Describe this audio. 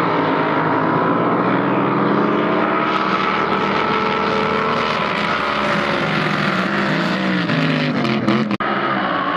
The loud whirring sounds of a motorboat